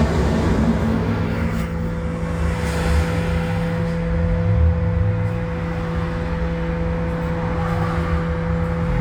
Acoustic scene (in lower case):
bus